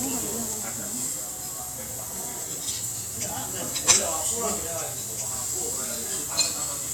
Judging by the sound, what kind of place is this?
restaurant